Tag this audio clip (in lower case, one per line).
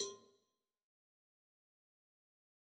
bell
cowbell